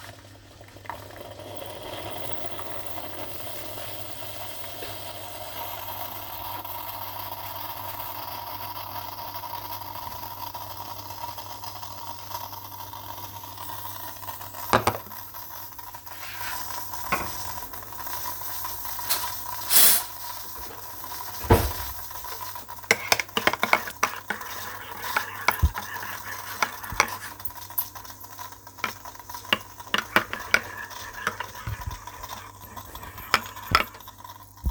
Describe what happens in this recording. I used the coffee machie, I opened a drawer, then took a sppon, I mixed the coffee